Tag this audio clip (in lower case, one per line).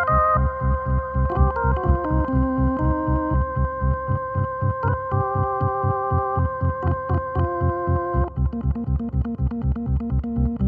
playing electronic organ
organ
electronic organ